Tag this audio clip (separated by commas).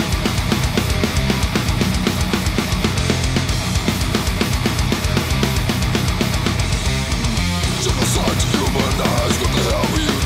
Musical instrument, Guitar, Plucked string instrument, Music, Electric guitar